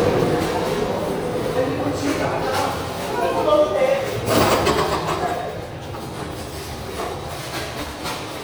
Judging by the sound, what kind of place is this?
subway station